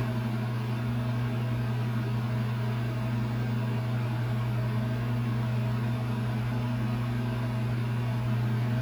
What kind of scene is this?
kitchen